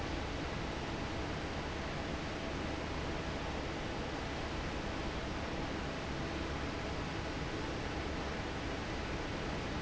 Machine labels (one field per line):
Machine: fan